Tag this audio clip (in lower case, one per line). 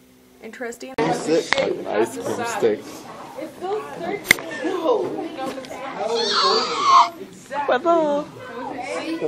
crying